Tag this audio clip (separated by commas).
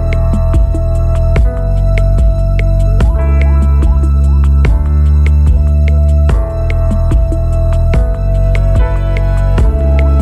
Music